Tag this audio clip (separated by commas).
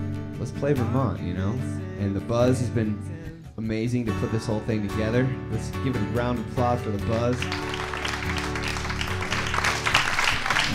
Speech, Rock music, Music